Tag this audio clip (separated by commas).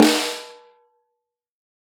Drum, Musical instrument, Music, Snare drum, Percussion